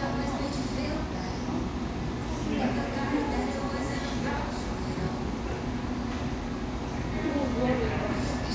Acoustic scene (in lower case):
cafe